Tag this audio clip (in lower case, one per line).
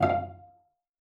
musical instrument
music
bowed string instrument